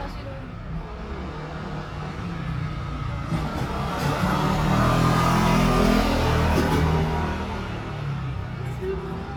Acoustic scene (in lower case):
residential area